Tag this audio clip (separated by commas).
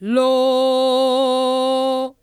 Female singing, Human voice, Singing